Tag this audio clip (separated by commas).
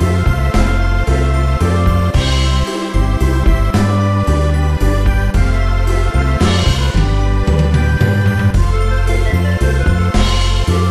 Music